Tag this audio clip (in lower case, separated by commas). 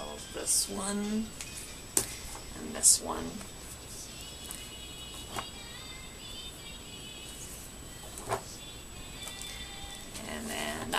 inside a small room, music, speech